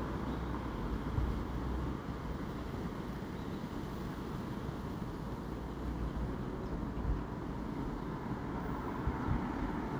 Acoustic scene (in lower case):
residential area